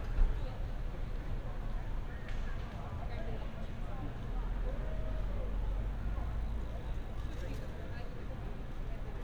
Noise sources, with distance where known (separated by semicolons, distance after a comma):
person or small group talking, far